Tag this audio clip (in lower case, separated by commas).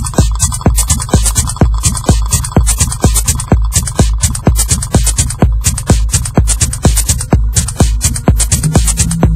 techno, electronic music, music